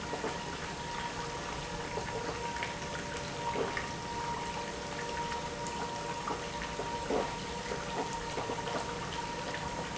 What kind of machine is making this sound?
pump